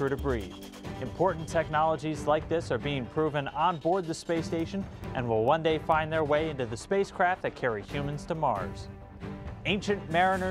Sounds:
speech, music

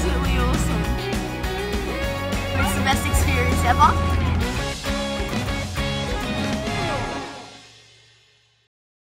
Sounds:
music, speech, country

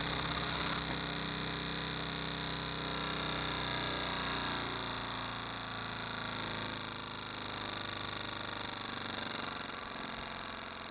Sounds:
engine

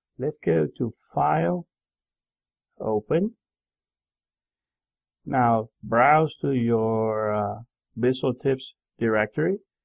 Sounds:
speech

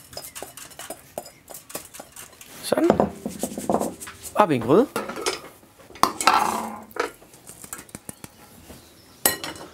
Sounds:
speech

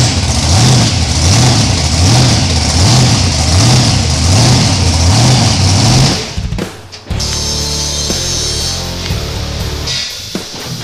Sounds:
music, vehicle

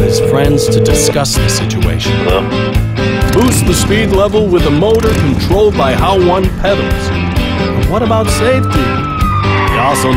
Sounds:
speech, music, vehicle

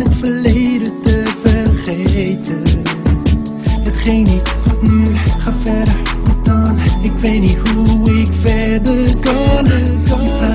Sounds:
music

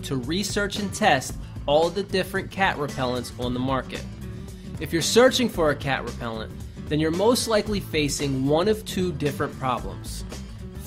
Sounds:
music, speech

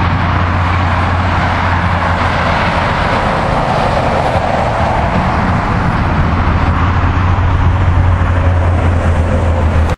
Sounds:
vehicle, truck

